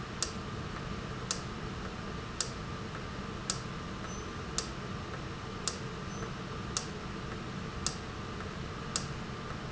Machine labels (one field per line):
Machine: valve